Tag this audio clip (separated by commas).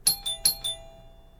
Door, Alarm, home sounds, Doorbell